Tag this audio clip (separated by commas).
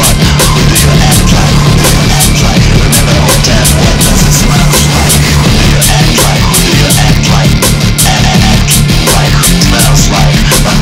Music